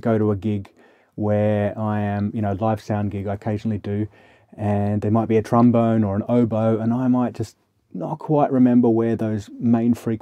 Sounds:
Speech

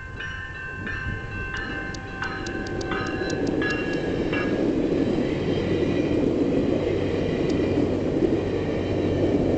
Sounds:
Vehicle

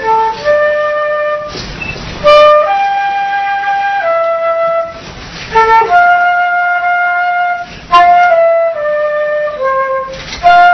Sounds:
playing flute

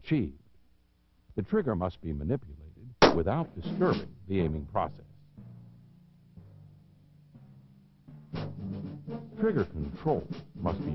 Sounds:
Speech, Music, Timpani

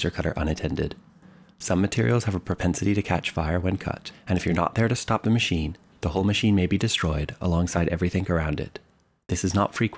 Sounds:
Speech

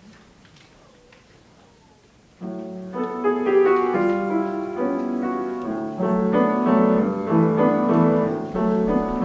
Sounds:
Music

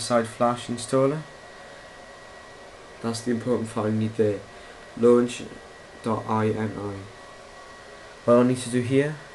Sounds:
Speech

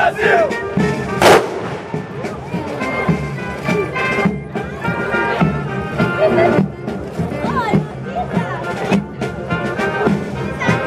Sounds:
people marching

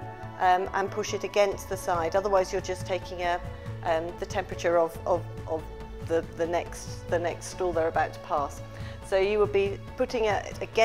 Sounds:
Music, Speech

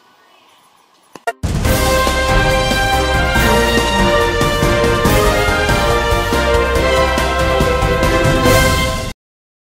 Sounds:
Music

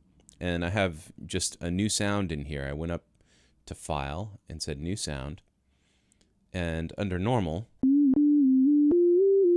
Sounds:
Keyboard (musical), Musical instrument, Music, Synthesizer, Speech

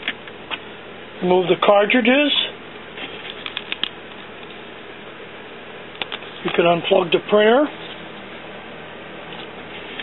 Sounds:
Speech

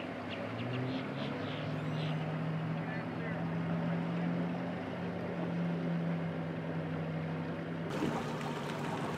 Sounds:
Speech

